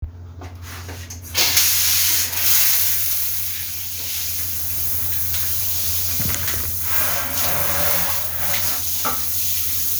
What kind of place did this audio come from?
restroom